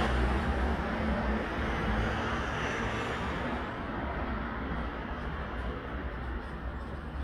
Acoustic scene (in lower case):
street